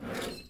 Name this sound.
wooden drawer opening